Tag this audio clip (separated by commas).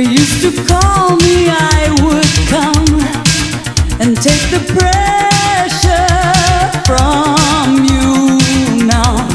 Disco, Music